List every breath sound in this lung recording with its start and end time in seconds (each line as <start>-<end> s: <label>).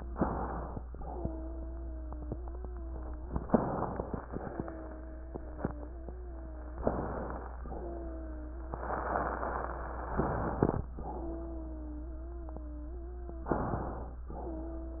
0.00-0.79 s: inhalation
0.95-3.39 s: wheeze
3.44-4.19 s: inhalation
4.33-6.77 s: wheeze
6.84-7.58 s: inhalation
7.68-10.09 s: wheeze
10.15-10.90 s: inhalation
10.93-13.49 s: wheeze
13.51-14.26 s: inhalation
14.36-15.00 s: wheeze